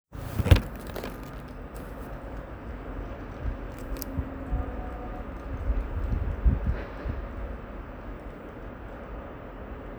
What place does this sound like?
residential area